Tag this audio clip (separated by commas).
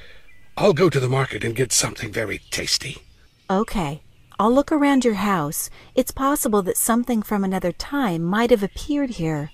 Conversation